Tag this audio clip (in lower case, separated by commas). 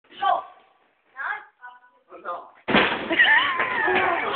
slam, speech